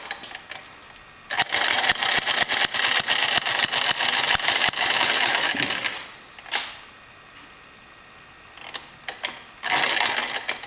A very small motor starts and clicking is present